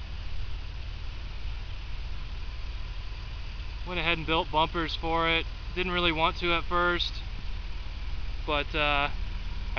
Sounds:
Speech, Vehicle

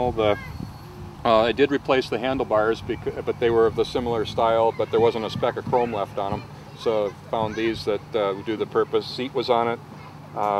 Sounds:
Speech

